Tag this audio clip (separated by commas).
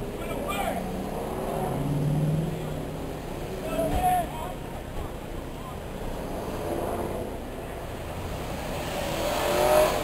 Speech, Vehicle, Car, outside, urban or man-made